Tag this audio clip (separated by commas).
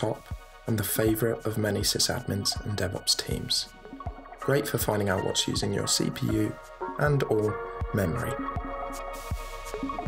Music, Speech